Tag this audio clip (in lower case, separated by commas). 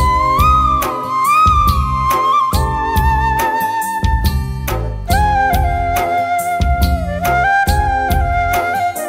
music, music for children